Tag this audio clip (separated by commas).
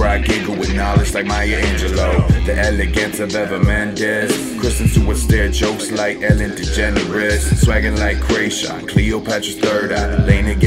Music, Dance music